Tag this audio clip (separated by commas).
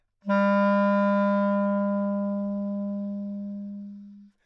Music, Musical instrument, Wind instrument